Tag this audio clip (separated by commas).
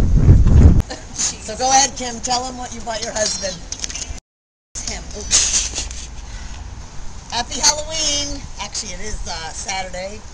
Speech